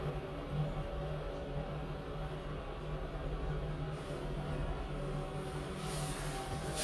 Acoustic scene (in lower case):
elevator